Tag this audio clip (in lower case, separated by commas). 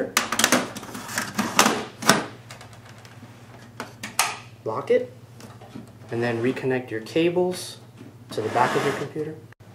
speech, inside a small room